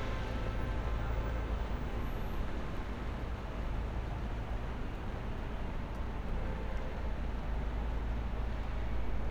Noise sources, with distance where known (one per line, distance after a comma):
engine of unclear size, far
car horn, far